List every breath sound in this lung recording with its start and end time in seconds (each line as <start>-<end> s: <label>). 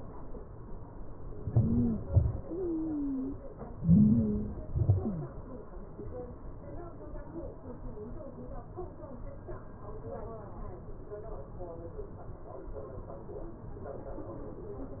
1.46-1.92 s: stridor
1.50-1.94 s: inhalation
2.12-2.45 s: exhalation
2.12-2.45 s: stridor
3.87-4.68 s: inhalation
3.87-4.68 s: stridor
4.76-5.24 s: exhalation
4.76-5.24 s: stridor